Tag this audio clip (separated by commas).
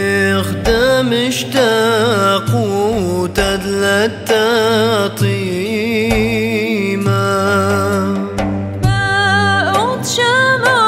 Music, Mantra